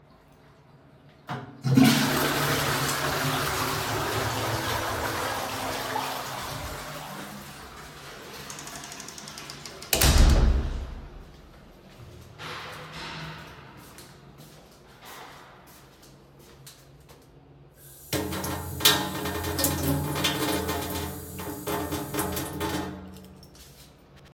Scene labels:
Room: bathroom; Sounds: toilet flushing, door, footsteps, running water, keys

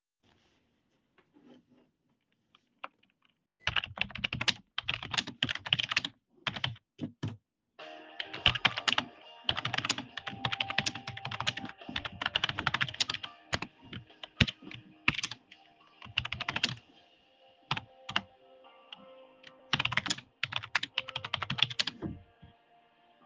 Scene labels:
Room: office; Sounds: keyboard typing, phone ringing

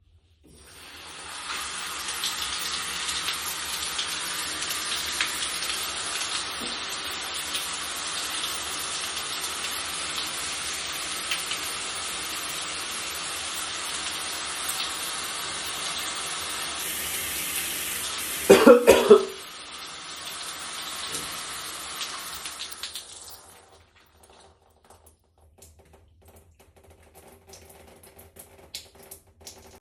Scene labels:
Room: bathroom; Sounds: running water

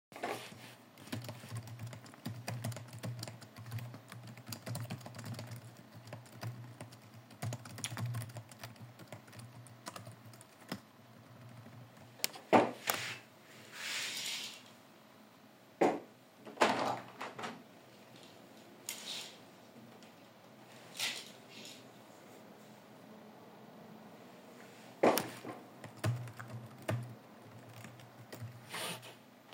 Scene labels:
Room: bedroom; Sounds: keyboard typing, window

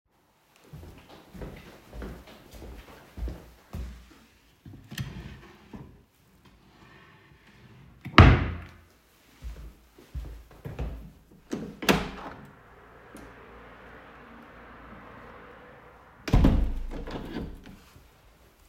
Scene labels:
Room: living room; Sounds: footsteps, wardrobe or drawer (more than once), window (more than once)

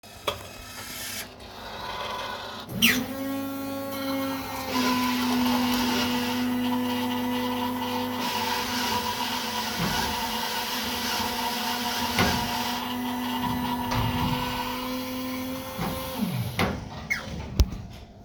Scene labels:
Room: office; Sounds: coffee machine

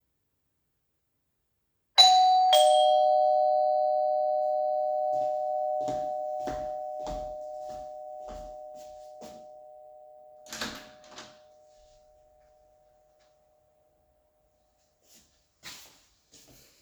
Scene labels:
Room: hallway; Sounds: bell ringing, footsteps, door

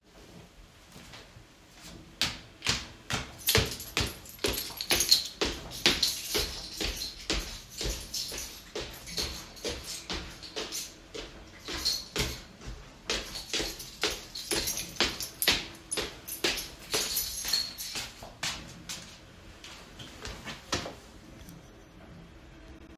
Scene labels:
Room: hallway; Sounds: footsteps, keys

